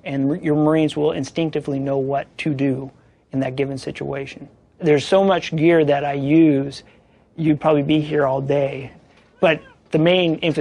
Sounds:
Speech

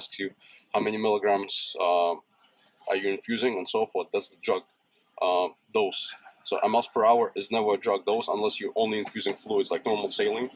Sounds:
Speech

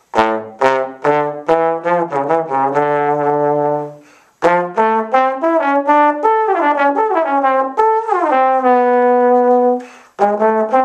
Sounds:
playing trombone

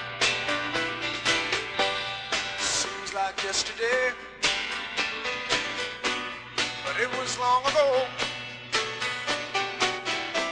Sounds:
Music

